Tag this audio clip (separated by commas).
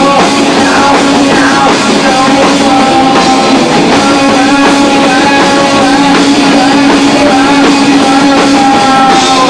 Music